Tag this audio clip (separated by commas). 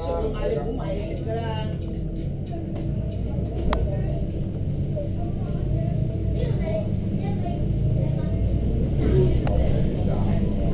Music, Speech